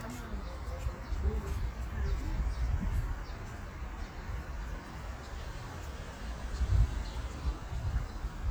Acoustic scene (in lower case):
residential area